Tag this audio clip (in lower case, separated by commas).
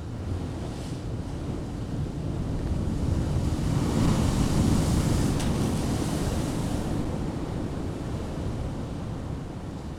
wind, ocean, surf, water